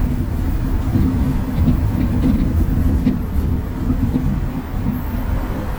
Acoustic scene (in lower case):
bus